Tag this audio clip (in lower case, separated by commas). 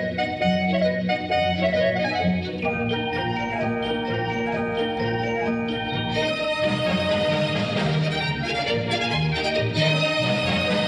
music